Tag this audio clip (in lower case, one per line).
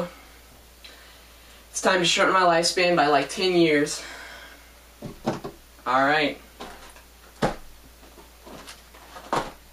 speech